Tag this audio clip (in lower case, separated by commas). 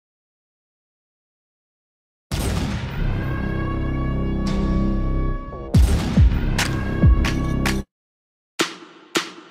music, drum machine